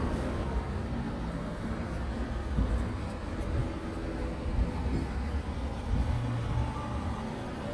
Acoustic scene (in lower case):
residential area